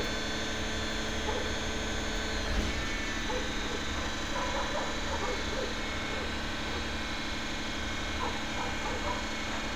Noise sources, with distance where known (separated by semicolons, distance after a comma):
large-sounding engine, near; dog barking or whining